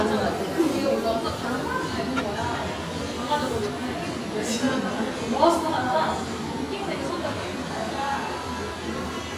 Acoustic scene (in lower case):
cafe